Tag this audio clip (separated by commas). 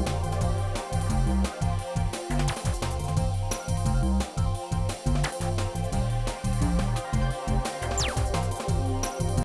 Music, Electronic music